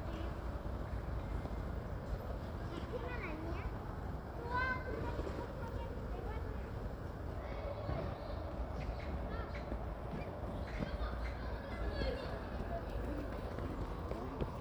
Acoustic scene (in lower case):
residential area